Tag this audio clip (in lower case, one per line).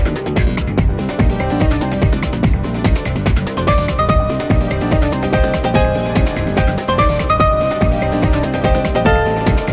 music